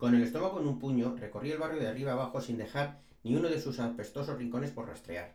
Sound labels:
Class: speech